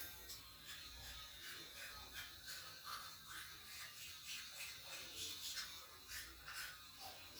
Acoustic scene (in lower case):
restroom